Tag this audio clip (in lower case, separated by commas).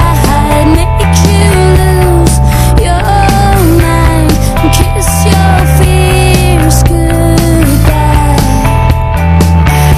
music